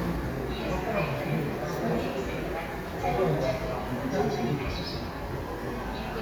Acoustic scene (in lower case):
subway station